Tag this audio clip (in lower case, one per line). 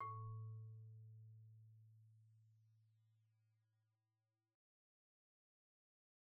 xylophone
mallet percussion
music
musical instrument
percussion
wood